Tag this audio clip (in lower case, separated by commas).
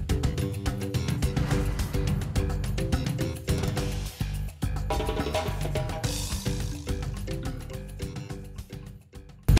music